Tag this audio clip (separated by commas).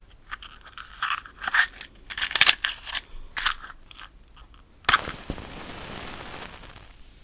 Fire